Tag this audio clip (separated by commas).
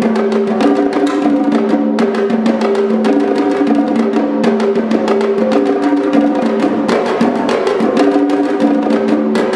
Music, Percussion